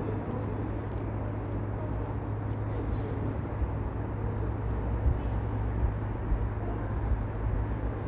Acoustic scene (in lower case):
street